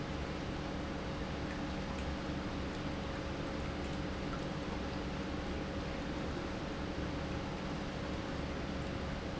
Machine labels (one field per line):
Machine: pump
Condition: normal